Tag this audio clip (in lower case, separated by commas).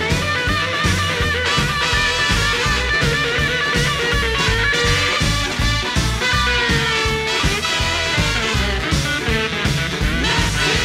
swing music, music